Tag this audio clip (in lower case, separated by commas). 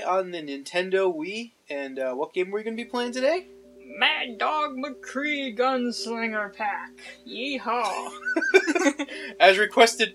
speech